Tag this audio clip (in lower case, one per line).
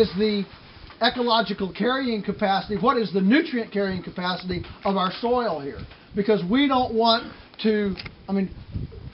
speech